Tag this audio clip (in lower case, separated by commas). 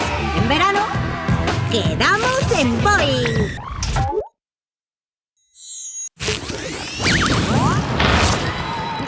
music, speech